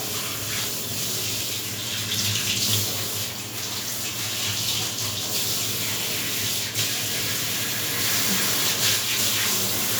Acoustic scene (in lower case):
restroom